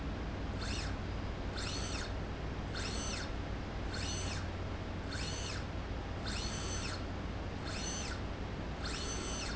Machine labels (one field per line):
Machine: slide rail